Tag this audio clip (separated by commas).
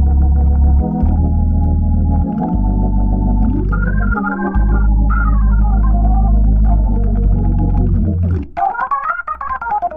Keyboard (musical), Music, Piano, Hammond organ, playing hammond organ, Organ, Musical instrument